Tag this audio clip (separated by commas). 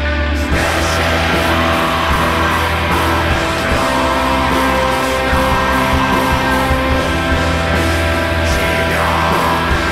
Music, Mantra